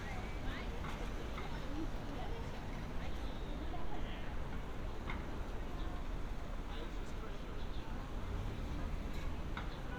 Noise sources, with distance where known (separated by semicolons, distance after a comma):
background noise